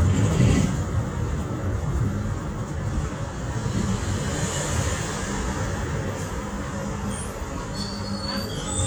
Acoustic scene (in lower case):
bus